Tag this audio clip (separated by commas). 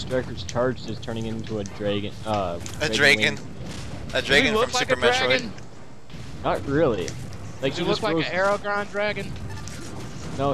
Speech